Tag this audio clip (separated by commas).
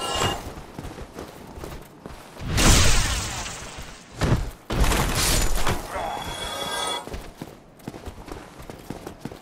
Speech